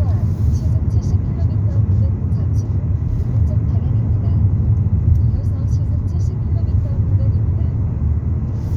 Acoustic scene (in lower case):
car